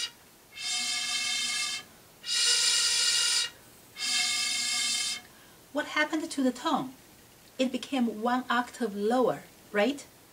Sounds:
speech

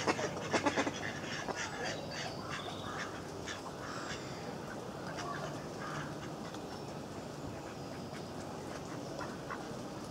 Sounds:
duck quacking

